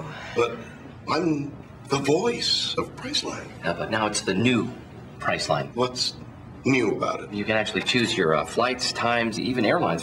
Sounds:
inside a large room or hall, Speech

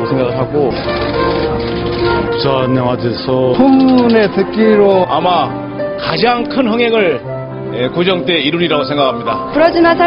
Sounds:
Music, Speech

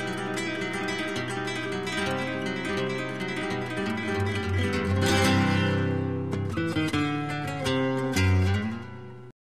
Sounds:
Guitar, Bass guitar, Acoustic guitar, Plucked string instrument, Musical instrument, Music

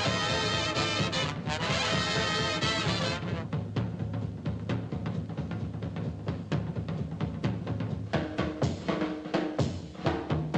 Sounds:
playing tympani

